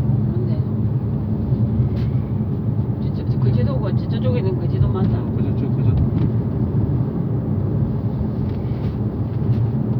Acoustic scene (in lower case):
car